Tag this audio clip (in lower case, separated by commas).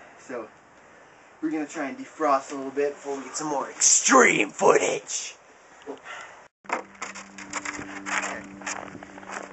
speech, crackle